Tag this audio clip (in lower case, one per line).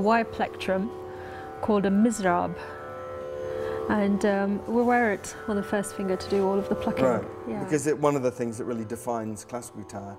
music
speech